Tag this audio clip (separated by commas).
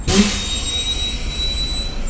Motor vehicle (road), Vehicle, Bus